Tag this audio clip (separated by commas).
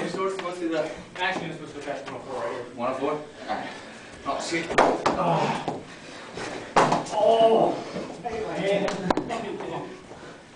Speech